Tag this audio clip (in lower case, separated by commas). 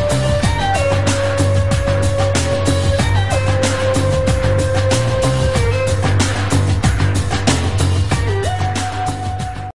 music